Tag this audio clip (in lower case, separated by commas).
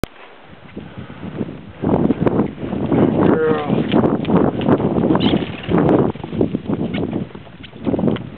speech, animal